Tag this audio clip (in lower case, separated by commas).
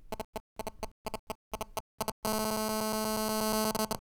alarm, telephone